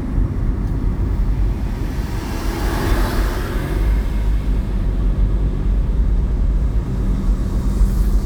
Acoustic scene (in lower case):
car